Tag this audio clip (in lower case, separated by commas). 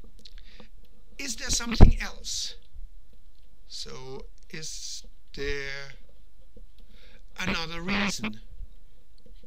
speech